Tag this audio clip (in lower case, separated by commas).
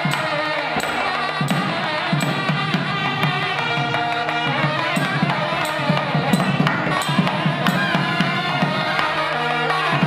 musical instrument, music, tabla